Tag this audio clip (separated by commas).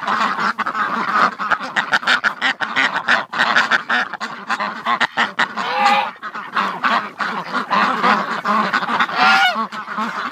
duck quacking